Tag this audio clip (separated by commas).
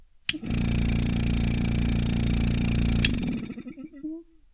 Engine, Idling